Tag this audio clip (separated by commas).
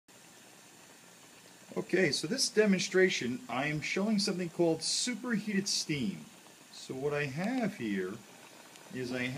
Speech